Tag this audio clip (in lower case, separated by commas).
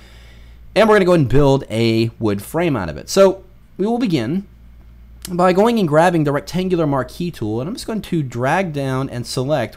speech